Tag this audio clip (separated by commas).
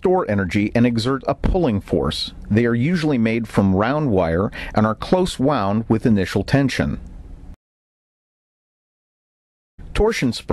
Speech